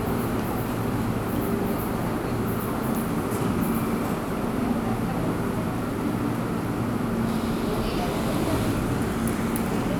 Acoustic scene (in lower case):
subway station